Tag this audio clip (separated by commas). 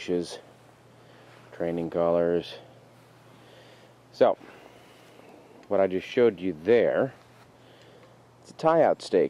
Speech